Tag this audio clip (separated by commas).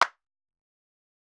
Clapping, Hands